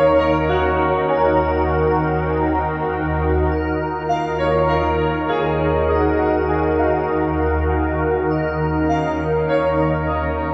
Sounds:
Chant, Music

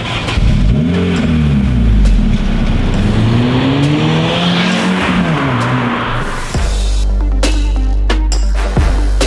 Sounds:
Car, Vehicle, Music

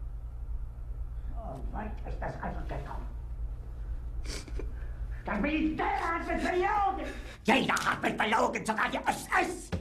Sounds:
Speech

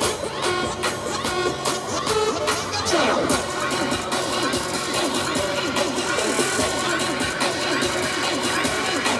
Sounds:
Exciting music, Music

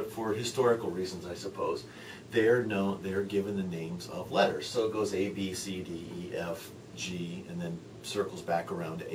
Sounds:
Speech

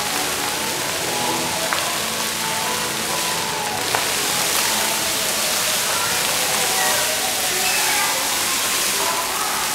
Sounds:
Speech, Music

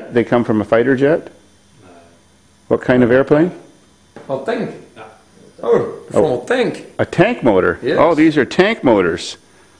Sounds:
Speech

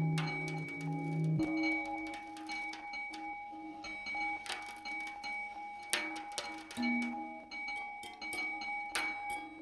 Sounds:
Musical instrument, Music

